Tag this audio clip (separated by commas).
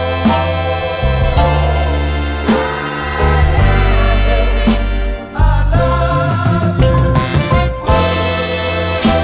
Soul music, Music